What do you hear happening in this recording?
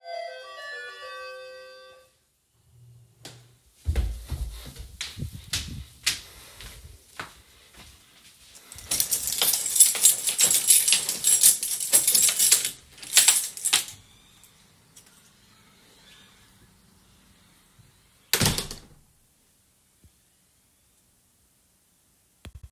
The bell rang and then I walked to the door. I used the keychain to unlock and open the door. Finally, I closed the door.